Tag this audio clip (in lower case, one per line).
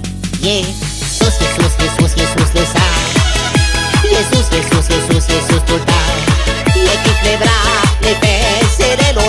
music